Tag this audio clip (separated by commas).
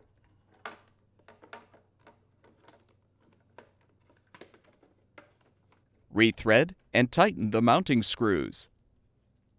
Speech